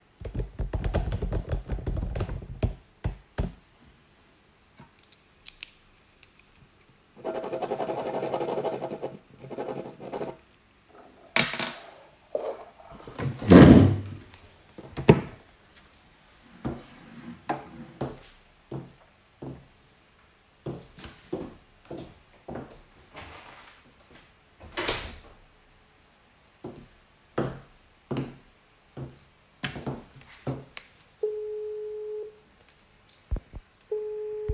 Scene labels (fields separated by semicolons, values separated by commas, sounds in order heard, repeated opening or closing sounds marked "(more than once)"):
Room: office; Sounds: keyboard typing, footsteps, door, phone ringing